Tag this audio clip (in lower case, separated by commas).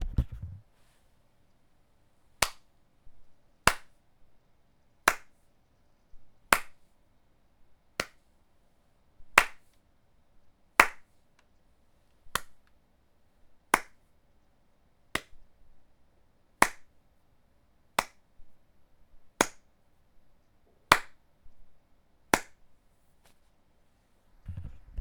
hands